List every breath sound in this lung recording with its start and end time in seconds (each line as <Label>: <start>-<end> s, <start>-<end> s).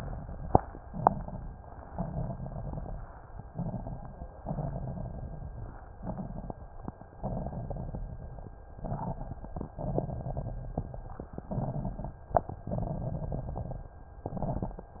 Inhalation: 0.82-1.61 s, 3.47-4.27 s, 6.00-6.58 s, 8.82-9.54 s, 11.44-12.18 s, 14.21-14.95 s
Exhalation: 1.92-3.08 s, 4.44-5.69 s, 7.13-8.41 s, 9.81-11.08 s, 12.60-13.87 s
Crackles: 0.82-1.61 s, 1.92-3.08 s, 3.47-4.27 s, 4.44-5.69 s, 6.00-6.58 s, 7.13-8.41 s, 8.82-9.54 s, 9.81-11.08 s, 11.44-12.18 s, 12.60-13.87 s, 14.21-14.95 s